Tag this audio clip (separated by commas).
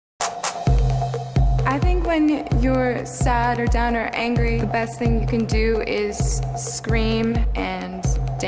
Music, Speech